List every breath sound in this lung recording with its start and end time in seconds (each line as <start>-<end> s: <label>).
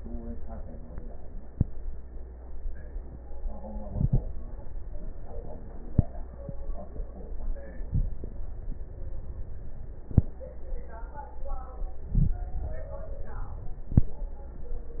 3.77-4.29 s: inhalation
7.80-8.24 s: inhalation
12.01-12.53 s: inhalation